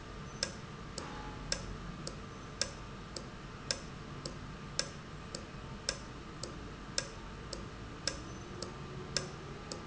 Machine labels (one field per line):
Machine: valve